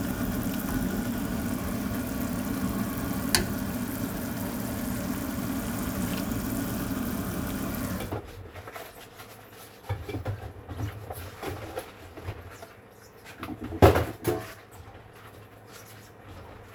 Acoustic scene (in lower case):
kitchen